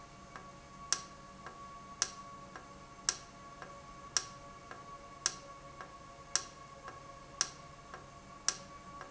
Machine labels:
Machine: valve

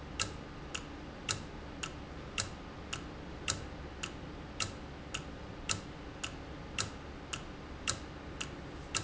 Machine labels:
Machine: valve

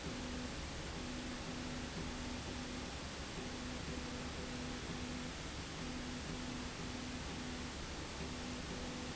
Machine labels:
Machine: slide rail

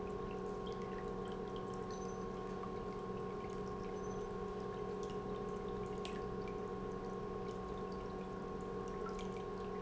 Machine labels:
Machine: pump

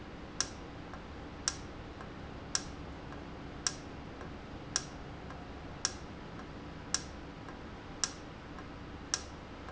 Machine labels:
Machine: valve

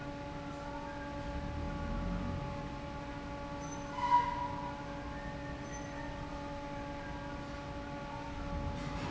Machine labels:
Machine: fan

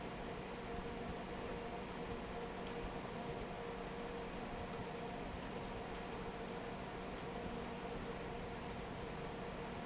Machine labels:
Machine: fan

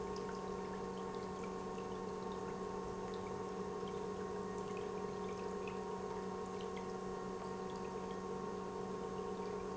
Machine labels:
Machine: pump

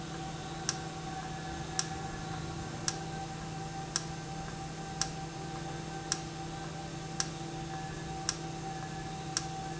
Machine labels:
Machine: valve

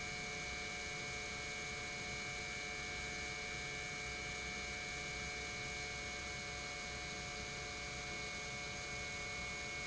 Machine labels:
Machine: pump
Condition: normal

